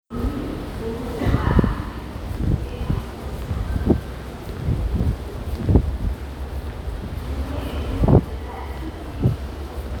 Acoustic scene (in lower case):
subway station